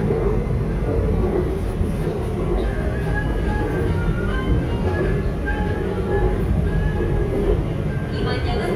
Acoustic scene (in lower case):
subway train